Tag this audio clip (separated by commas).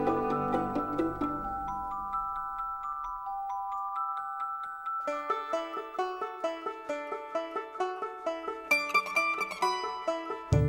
Music